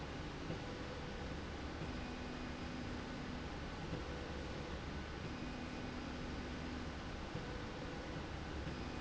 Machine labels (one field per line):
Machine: slide rail